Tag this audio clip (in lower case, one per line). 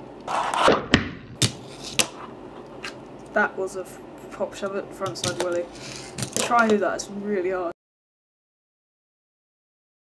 speech